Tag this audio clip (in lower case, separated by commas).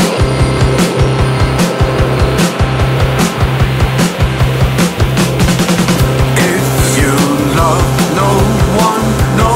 music